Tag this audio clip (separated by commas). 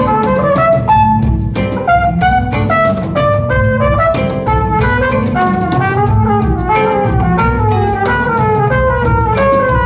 Strum, Plucked string instrument, Acoustic guitar, Music, Guitar, Musical instrument